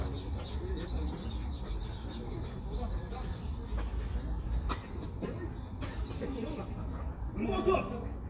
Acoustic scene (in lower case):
park